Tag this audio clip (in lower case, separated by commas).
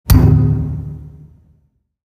thump